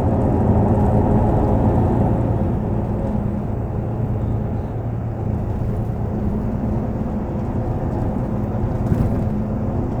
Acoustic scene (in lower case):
bus